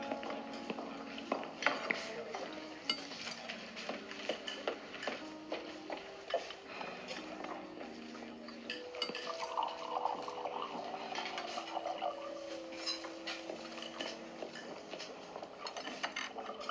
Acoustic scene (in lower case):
restaurant